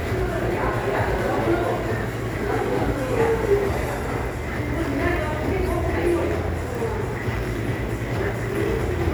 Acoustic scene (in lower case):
crowded indoor space